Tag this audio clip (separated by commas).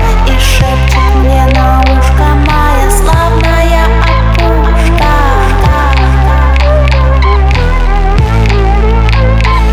Music